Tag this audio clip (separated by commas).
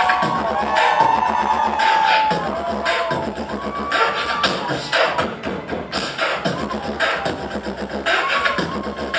Vocal music, Beatboxing